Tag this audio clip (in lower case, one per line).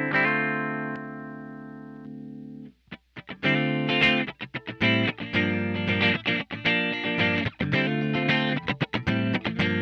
effects unit
music
musical instrument
guitar
inside a small room